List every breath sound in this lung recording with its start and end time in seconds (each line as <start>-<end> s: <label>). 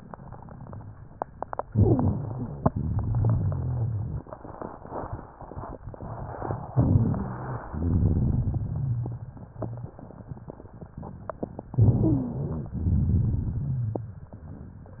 1.59-2.65 s: inhalation
1.65-2.67 s: stridor
2.71-4.26 s: exhalation
2.71-4.26 s: crackles
6.67-7.69 s: inhalation
6.67-7.69 s: stridor
7.71-9.26 s: exhalation
7.71-9.26 s: crackles
11.71-12.73 s: stridor
11.72-12.75 s: inhalation
12.81-14.36 s: exhalation
12.81-14.36 s: crackles